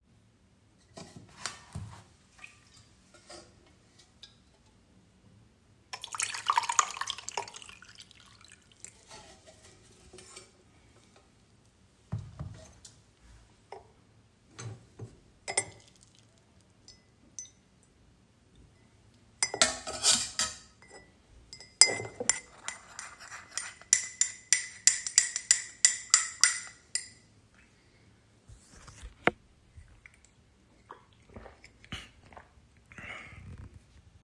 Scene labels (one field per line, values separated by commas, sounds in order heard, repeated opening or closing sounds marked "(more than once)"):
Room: kitchen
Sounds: running water, cutlery and dishes